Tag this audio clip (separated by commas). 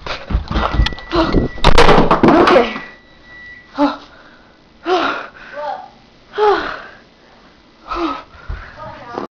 Speech